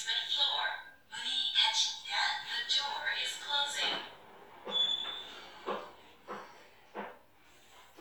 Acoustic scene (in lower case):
elevator